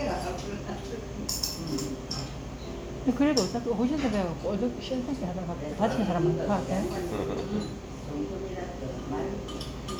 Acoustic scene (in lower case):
crowded indoor space